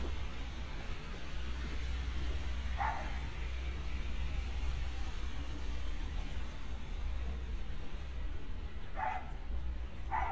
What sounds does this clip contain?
dog barking or whining